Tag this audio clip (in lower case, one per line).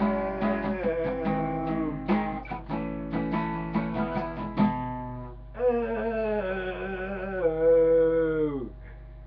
musical instrument
guitar